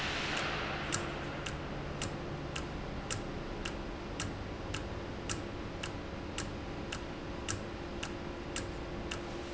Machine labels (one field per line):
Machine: valve